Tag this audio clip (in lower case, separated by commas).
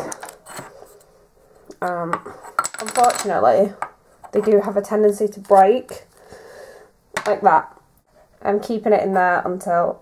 speech, inside a small room